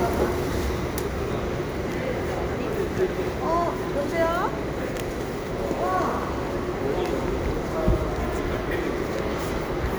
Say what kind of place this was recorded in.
crowded indoor space